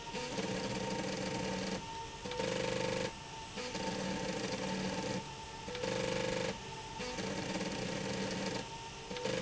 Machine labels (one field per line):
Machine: slide rail